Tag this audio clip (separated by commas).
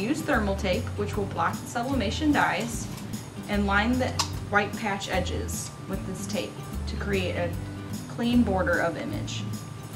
Music, Speech